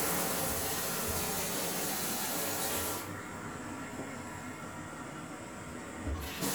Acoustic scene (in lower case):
restroom